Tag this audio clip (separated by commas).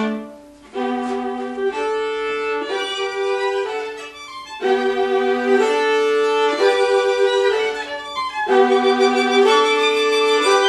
Musical instrument, Music, Violin, Bowed string instrument